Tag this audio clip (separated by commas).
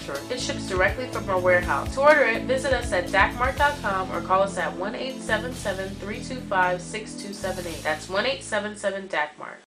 Speech, Music